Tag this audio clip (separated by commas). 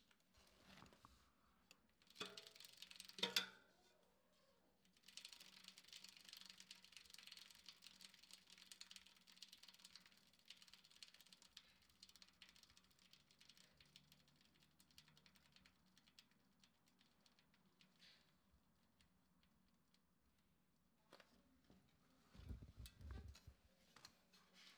Vehicle, Bicycle